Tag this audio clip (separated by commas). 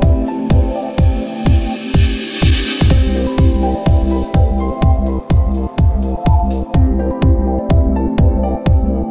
Dance music, Happy music, Pop music, Music